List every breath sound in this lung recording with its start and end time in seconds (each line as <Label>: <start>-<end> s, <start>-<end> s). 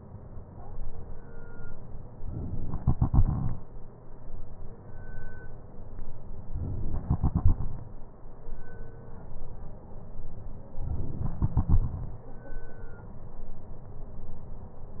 Inhalation: 2.21-3.56 s, 6.53-7.88 s, 10.74-12.09 s